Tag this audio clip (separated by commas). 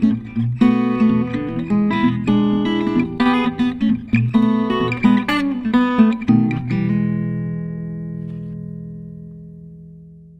Acoustic guitar, Music, Guitar